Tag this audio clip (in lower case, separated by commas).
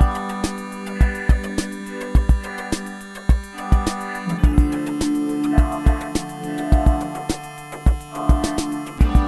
synthesizer, music